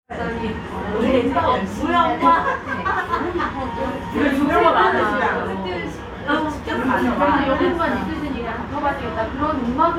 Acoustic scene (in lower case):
restaurant